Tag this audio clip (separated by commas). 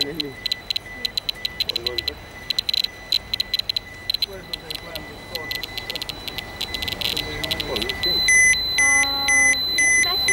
outside, urban or man-made, Alarm, Speech